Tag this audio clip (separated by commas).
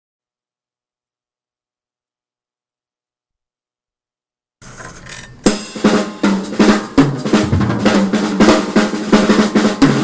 Music